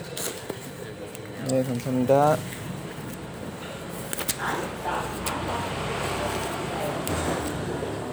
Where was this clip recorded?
in a restaurant